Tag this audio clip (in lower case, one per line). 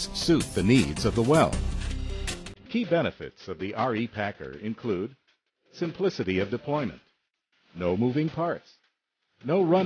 speech
music